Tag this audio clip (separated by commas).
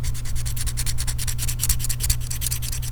Tools